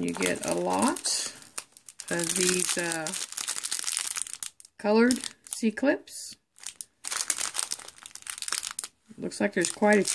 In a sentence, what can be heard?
A man and woman speaking over crinkling sounds